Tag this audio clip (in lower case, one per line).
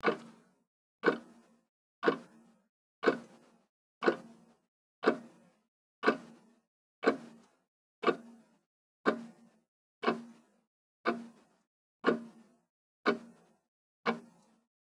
clock
mechanisms